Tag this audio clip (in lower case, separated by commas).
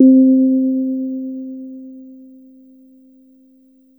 musical instrument, music, keyboard (musical), piano